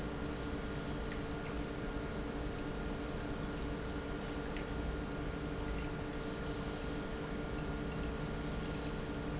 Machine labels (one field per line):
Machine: pump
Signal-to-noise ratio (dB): -6 dB